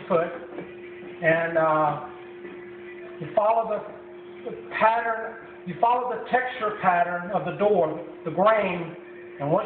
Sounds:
Speech

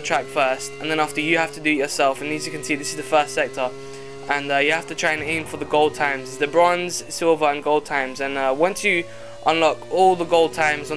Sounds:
Speech, Car

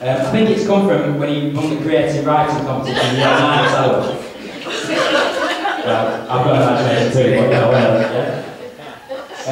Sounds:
Speech, Male speech, Narration

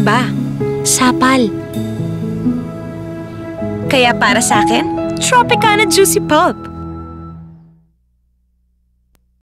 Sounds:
Speech, Music

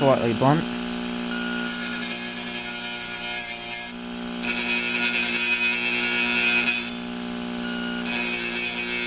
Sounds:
inside a small room, Speech

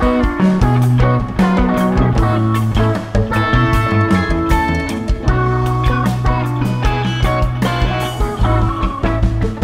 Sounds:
Music

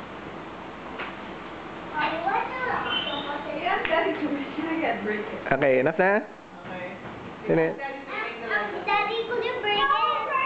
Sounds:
Children playing, Speech

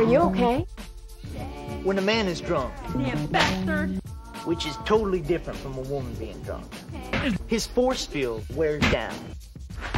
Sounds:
Speech, Music

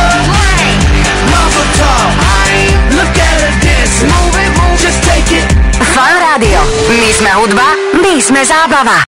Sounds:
Music, Speech

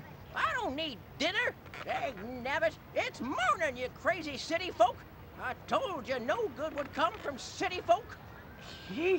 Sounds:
Speech

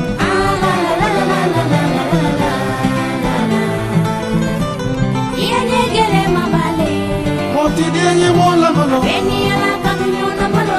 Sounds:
Plucked string instrument, Music, Singing, Musical instrument, Guitar

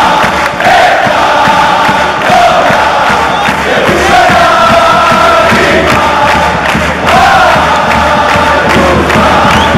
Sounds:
Music

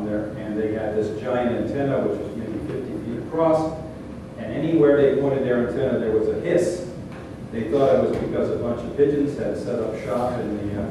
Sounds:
Speech

